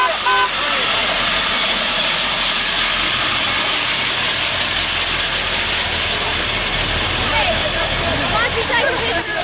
A truck idles and honks